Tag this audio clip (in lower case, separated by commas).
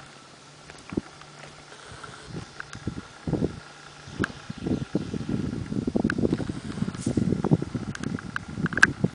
clip-clop, horse, animal, horse clip-clop